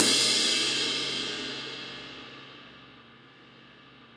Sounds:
cymbal, music, percussion, musical instrument, crash cymbal

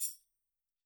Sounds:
music, tambourine, musical instrument, percussion

